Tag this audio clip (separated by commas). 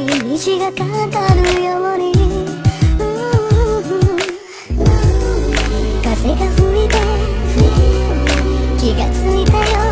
Music, Female singing